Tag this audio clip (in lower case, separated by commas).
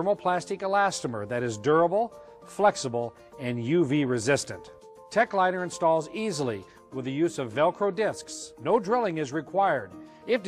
music, speech